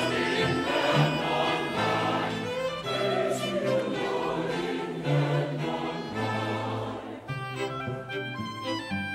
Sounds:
music

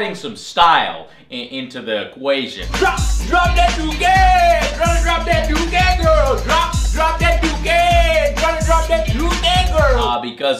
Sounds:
speech
music

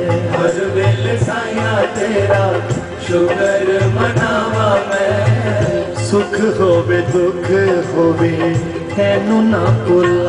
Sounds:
music
folk music
singing

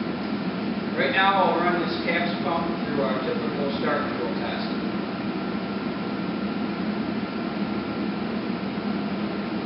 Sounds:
speech

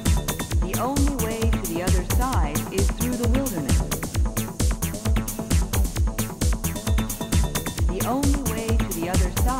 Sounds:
speech
music

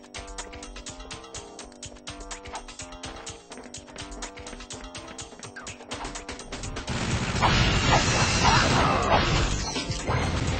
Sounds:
music

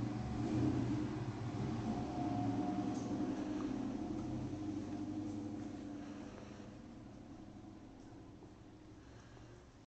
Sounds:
engine

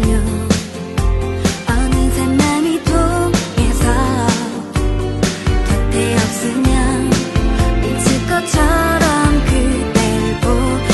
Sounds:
music

